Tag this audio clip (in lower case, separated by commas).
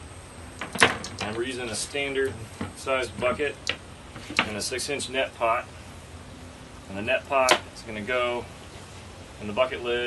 outside, rural or natural, speech